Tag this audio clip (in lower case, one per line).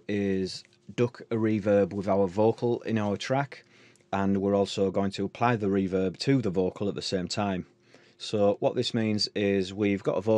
speech